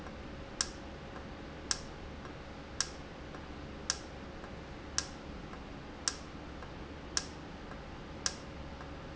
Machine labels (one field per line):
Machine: valve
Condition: normal